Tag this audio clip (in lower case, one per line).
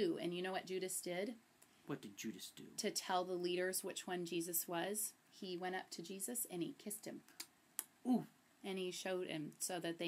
speech
inside a small room